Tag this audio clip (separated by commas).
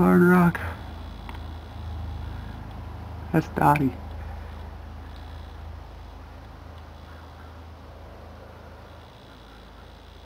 Speech